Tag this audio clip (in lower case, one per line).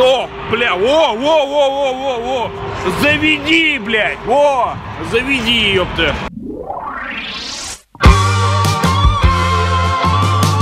music
speech